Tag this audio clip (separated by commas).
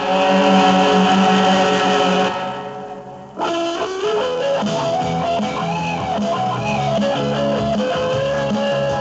Music